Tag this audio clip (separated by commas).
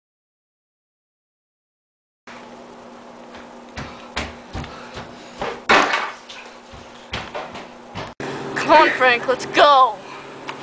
Speech, Walk